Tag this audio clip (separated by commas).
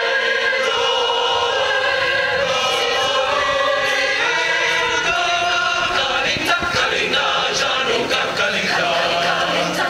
Female singing, Male singing